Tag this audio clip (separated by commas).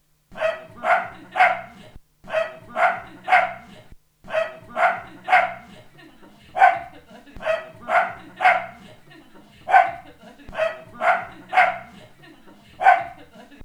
pets, Dog, Animal